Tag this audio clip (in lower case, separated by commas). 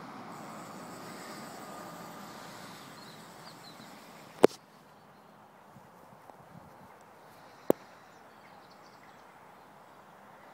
outside, rural or natural, animal